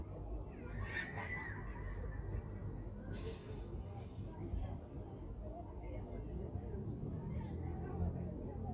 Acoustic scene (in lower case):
residential area